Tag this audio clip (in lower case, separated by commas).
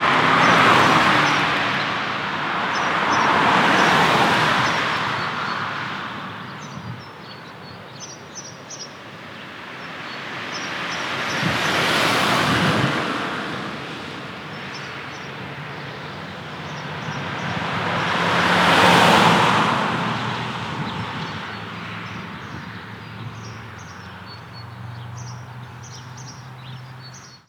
car, motor vehicle (road), vehicle, car passing by, roadway noise